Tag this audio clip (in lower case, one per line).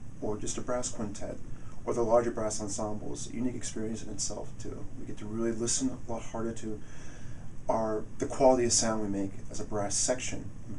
speech